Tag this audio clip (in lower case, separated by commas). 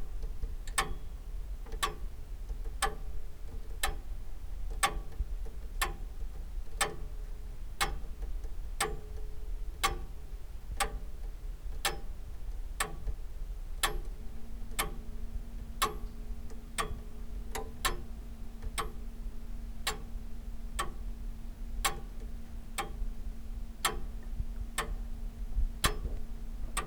tick-tock, mechanisms, clock